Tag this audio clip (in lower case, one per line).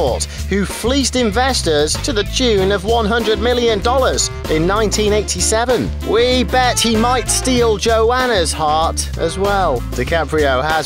music
speech